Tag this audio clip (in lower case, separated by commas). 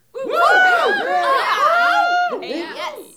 cheering, human group actions